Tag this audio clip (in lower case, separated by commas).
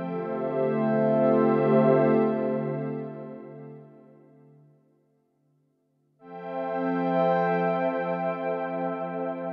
music